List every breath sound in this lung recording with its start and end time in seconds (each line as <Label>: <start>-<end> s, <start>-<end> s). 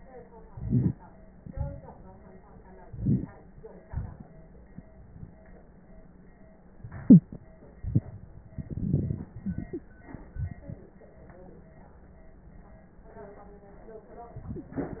Inhalation: 0.46-1.18 s, 2.83-3.46 s, 8.56-9.32 s
Exhalation: 1.39-2.18 s, 3.83-4.40 s
Crackles: 2.83-3.46 s, 8.56-9.32 s